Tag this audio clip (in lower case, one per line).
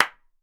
clapping
hands